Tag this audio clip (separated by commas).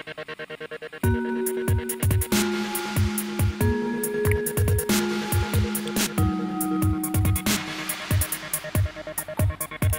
Music